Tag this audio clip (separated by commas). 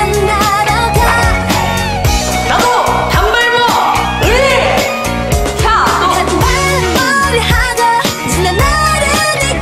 Music, Music of Asia